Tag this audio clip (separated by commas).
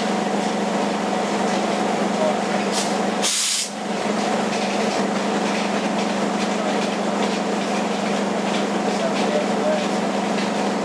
Train, Speech, train wagon, Vehicle